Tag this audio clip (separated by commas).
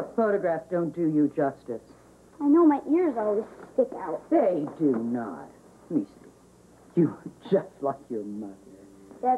Speech